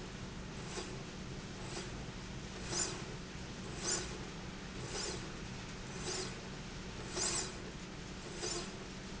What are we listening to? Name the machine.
slide rail